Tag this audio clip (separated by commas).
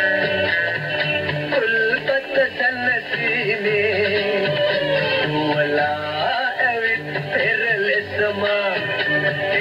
Music